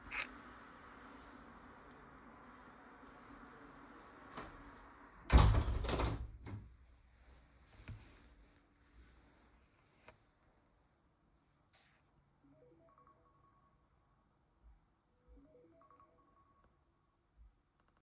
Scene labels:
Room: bedroom; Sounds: window, phone ringing

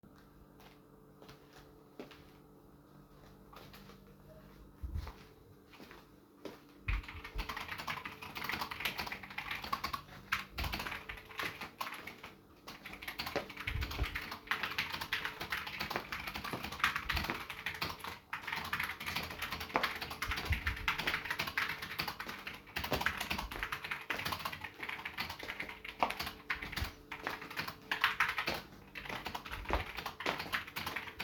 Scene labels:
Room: bedroom; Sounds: footsteps, keyboard typing

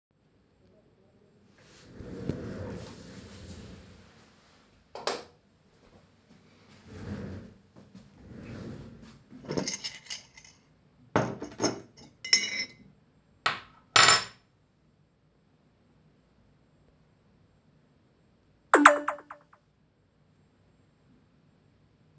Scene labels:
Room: bedroom; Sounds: light switch, cutlery and dishes, phone ringing

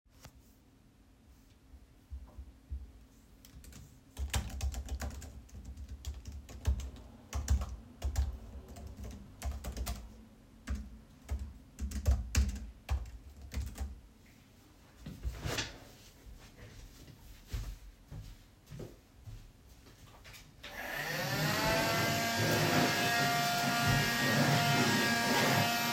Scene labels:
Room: bedroom; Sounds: keyboard typing, footsteps, vacuum cleaner

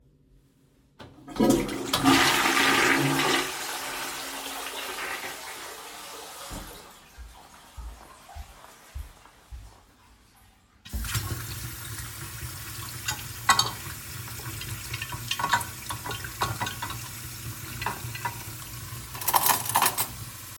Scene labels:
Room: bathroom, kitchen; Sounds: toilet flushing, footsteps, running water, cutlery and dishes

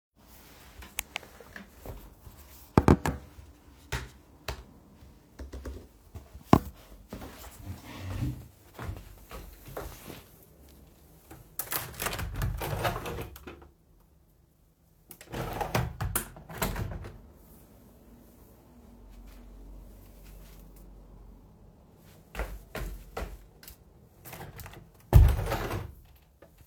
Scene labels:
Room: bedroom; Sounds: keyboard typing, footsteps, window (more than once)

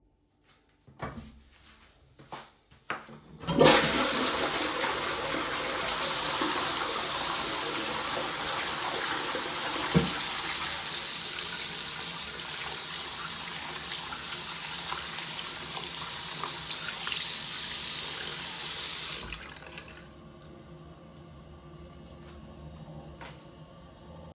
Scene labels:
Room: bathroom; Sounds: toilet flushing, running water

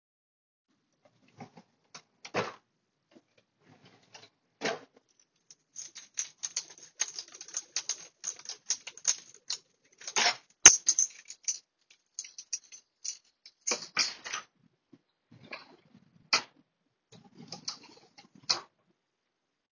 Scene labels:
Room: bathroom; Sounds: door (more than once), keys

